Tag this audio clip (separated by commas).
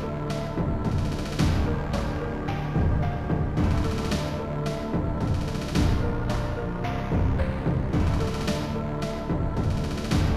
Music